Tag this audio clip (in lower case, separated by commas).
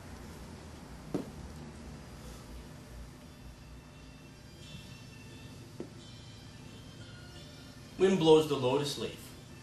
music, speech